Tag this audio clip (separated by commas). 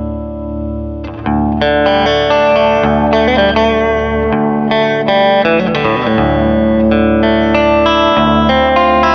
Music